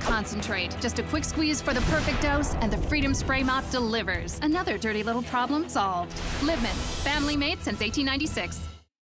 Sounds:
spray
music
speech

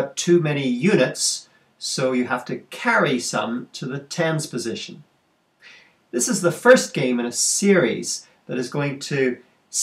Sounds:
speech

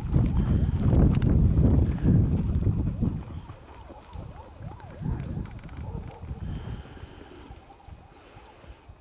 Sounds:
outside, rural or natural

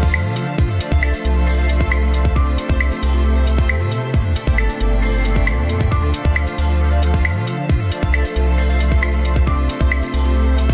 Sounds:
music

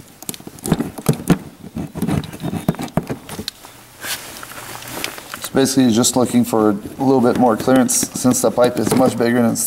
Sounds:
speech

